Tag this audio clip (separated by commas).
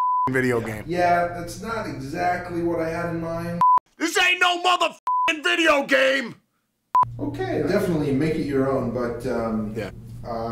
Speech